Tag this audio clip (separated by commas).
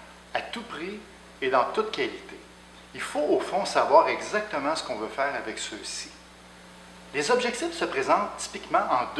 Speech